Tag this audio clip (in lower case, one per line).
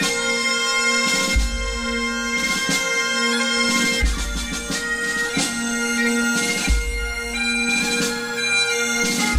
music
bagpipes